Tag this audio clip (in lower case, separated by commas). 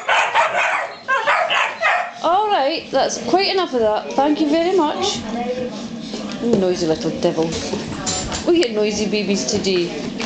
speech